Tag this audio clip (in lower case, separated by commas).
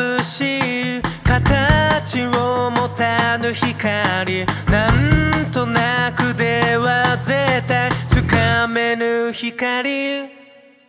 music